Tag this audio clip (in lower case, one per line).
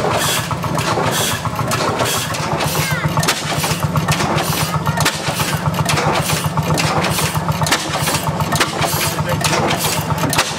car engine starting